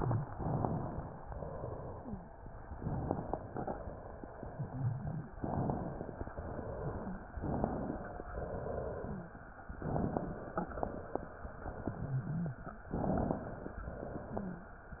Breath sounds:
0.30-1.20 s: inhalation
1.29-2.18 s: exhalation
2.77-3.66 s: inhalation
4.50-5.31 s: wheeze
5.39-6.28 s: inhalation
6.36-7.25 s: exhalation
7.38-8.27 s: inhalation
8.35-9.24 s: exhalation
9.83-10.72 s: inhalation
12.09-12.62 s: wheeze
12.94-13.83 s: inhalation
13.85-14.74 s: exhalation
14.31-14.76 s: wheeze

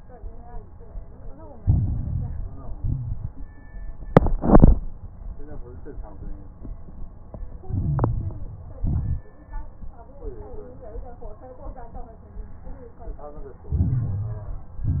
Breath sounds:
1.59-2.75 s: inhalation
1.59-2.75 s: crackles
2.77-3.42 s: exhalation
2.77-3.42 s: crackles
7.64-8.78 s: inhalation
7.64-8.78 s: crackles
8.80-9.27 s: exhalation
8.80-9.27 s: crackles
13.72-14.80 s: inhalation
13.72-14.80 s: crackles
14.84-15.00 s: exhalation
14.84-15.00 s: crackles

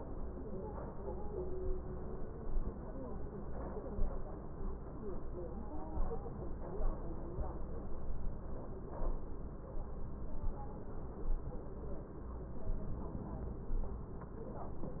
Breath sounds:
12.72-13.79 s: inhalation

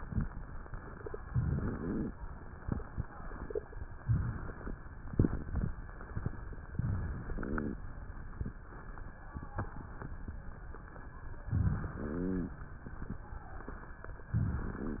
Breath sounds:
1.23-2.15 s: inhalation
1.23-2.15 s: crackles
4.06-4.82 s: inhalation
4.06-4.82 s: crackles
5.10-5.79 s: exhalation
5.10-5.79 s: crackles
6.79-7.78 s: inhalation
7.36-7.78 s: rhonchi
11.50-12.60 s: inhalation
11.94-12.60 s: rhonchi

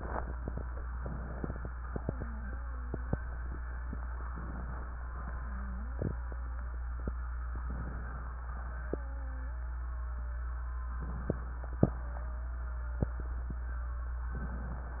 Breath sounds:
0.86-1.82 s: inhalation
1.87-4.24 s: wheeze
4.30-5.25 s: inhalation
5.30-7.67 s: wheeze
7.69-8.64 s: inhalation
8.63-11.00 s: wheeze
11.06-11.92 s: inhalation
11.95-14.32 s: wheeze
14.29-15.00 s: inhalation

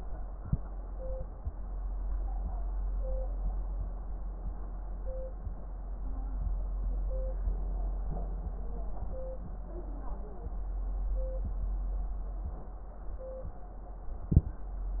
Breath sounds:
0.32-0.60 s: inhalation
14.30-14.59 s: inhalation

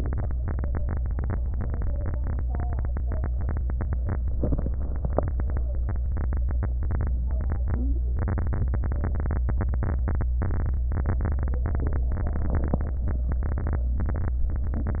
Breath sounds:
4.40-5.07 s: inhalation
7.50-8.18 s: inhalation
7.62-8.07 s: stridor

